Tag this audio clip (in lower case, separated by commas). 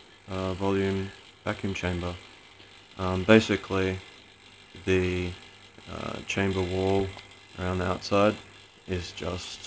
speech